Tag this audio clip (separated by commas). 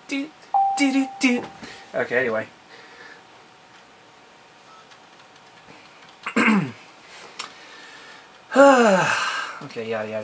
Speech